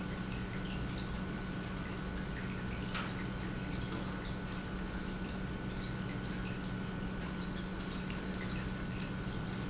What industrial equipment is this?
pump